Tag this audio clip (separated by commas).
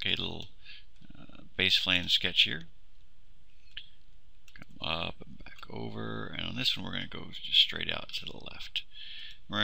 Speech